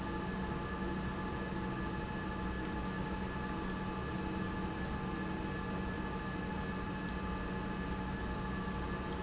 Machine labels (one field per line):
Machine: pump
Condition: normal